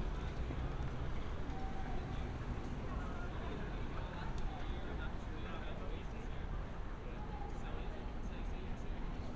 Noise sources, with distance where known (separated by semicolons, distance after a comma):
person or small group talking, far